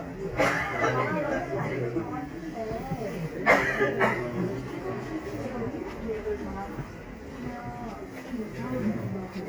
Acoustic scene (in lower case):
crowded indoor space